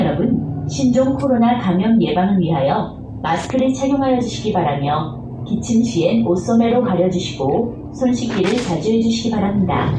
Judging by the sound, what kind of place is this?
bus